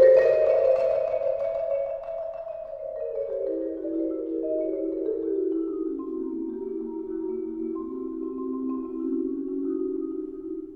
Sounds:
Classical music, Marimba, Music, xylophone, Percussion, Musical instrument

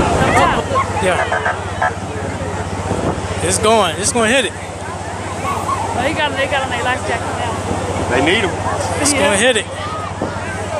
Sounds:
Wind, Wind noise (microphone)

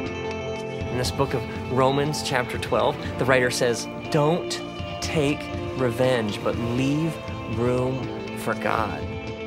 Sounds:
Music, Speech

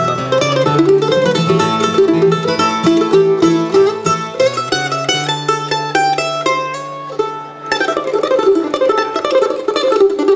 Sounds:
Mandolin, Music, Musical instrument

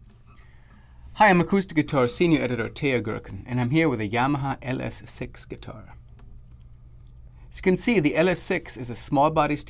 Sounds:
Speech

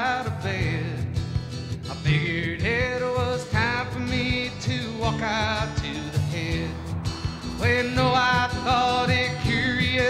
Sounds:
Music

